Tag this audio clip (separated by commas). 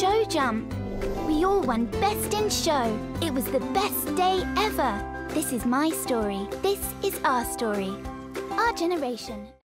Speech, Music